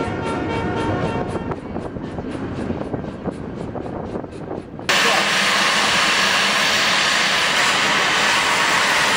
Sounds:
train
rail transport
train wagon
vehicle

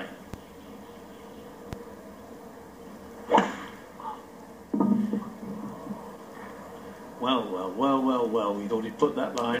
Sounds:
speech

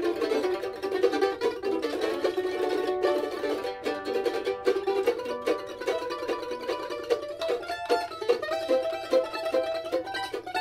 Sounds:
mandolin
musical instrument
plucked string instrument
guitar
music
country

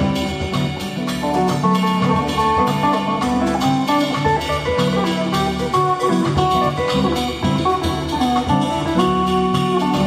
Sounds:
music

